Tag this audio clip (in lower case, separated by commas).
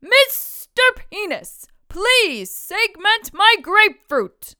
yell, speech, shout, human voice, woman speaking